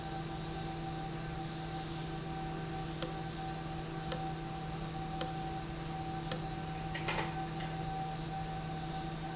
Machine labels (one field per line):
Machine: valve